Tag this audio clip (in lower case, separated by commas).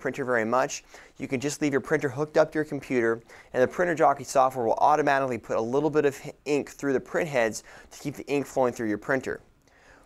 speech